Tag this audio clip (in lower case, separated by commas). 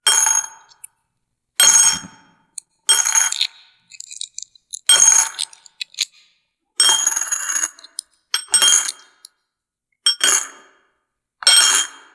domestic sounds, coin (dropping)